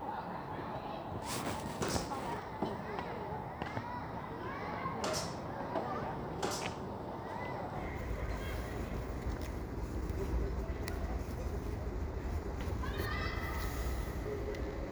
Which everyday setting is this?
residential area